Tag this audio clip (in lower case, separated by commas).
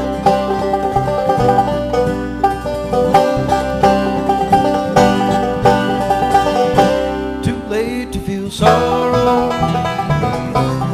music